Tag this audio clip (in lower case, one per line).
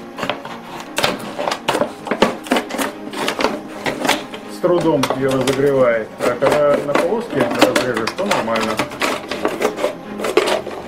plastic bottle crushing